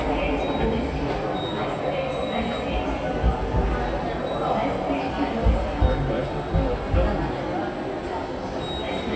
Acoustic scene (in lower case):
subway station